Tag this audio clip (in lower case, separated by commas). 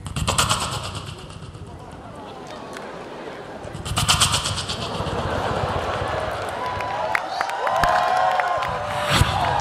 beat boxing